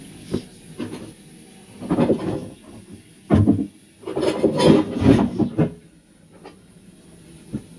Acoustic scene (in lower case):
kitchen